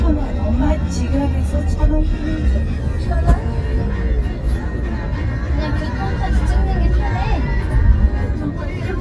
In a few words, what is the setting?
car